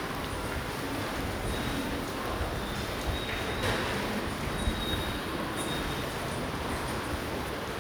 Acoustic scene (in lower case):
subway station